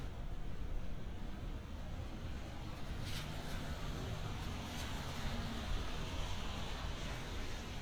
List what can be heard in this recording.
engine of unclear size